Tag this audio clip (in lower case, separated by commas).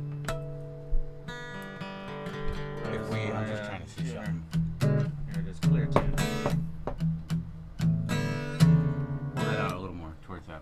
music, plucked string instrument, musical instrument, strum, speech, guitar